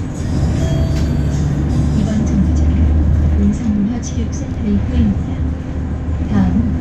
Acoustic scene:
bus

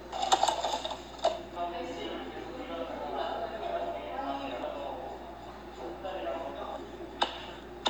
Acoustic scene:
cafe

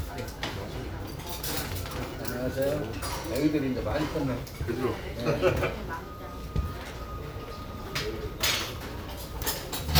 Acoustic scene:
restaurant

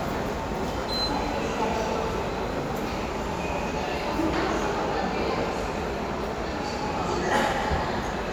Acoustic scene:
subway station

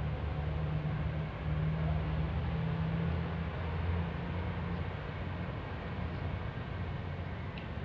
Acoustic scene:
residential area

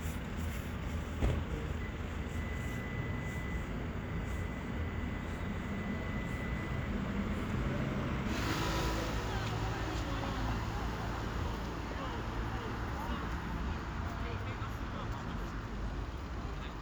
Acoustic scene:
street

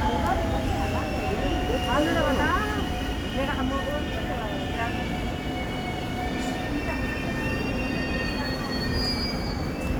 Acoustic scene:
subway station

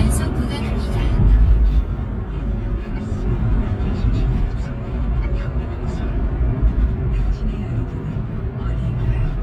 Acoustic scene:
car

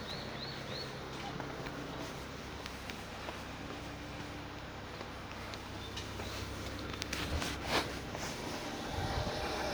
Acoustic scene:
elevator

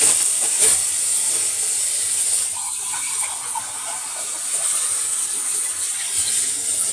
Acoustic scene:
kitchen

